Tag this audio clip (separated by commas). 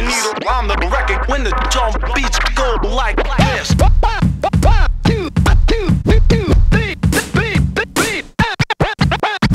Music, Speech